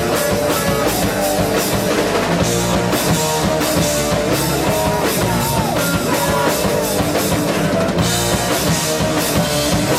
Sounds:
Rock and roll, Music

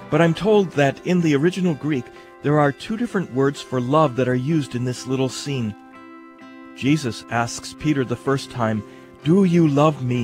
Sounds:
Speech, Music

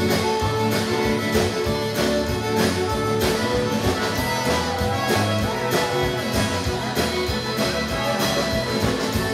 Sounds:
Music

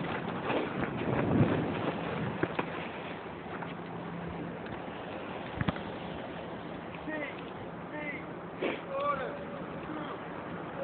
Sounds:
Speech

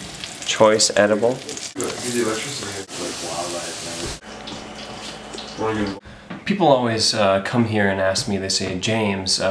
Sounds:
Speech

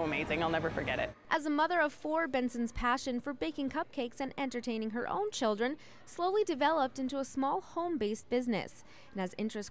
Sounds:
Speech

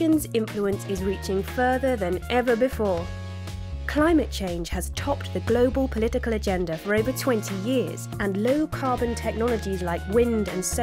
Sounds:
Speech, Music

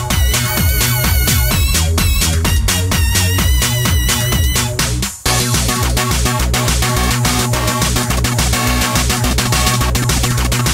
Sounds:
Music, Sampler

